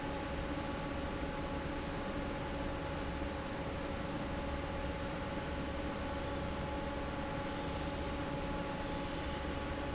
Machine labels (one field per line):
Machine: fan